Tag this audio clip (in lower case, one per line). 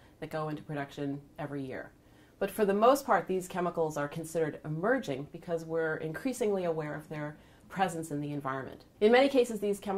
speech